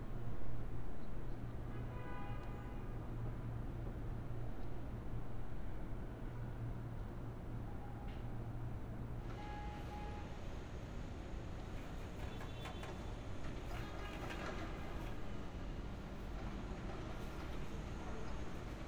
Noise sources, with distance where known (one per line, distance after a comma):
car horn, far